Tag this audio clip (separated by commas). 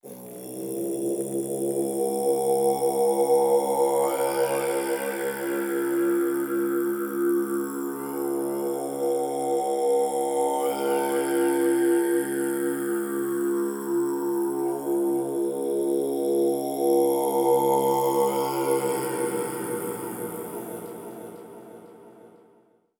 Human voice, Singing